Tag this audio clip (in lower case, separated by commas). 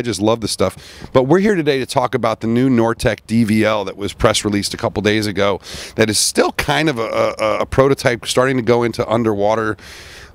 speech